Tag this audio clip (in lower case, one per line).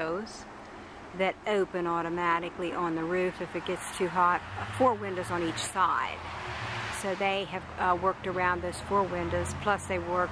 speech